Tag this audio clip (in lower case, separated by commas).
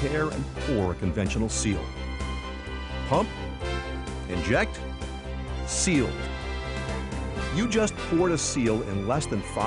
speech, music